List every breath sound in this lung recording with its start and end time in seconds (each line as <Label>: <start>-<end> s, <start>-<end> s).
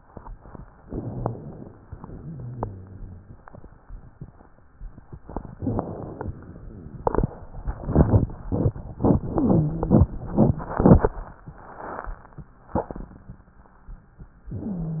Inhalation: 0.80-1.73 s, 5.55-6.35 s
Exhalation: 1.84-3.47 s
Rhonchi: 1.04-1.35 s, 2.22-3.41 s